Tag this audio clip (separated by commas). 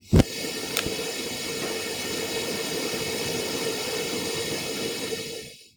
Fire